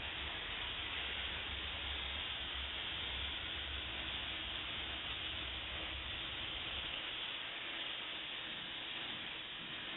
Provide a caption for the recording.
Something hisses continuously